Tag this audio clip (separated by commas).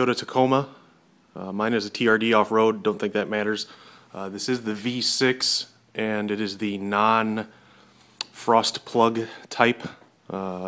Speech